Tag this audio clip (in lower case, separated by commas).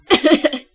human voice, laughter